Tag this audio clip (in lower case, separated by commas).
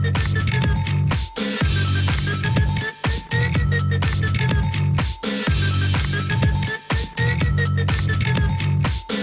music